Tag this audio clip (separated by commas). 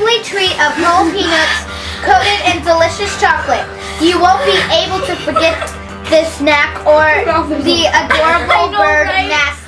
Speech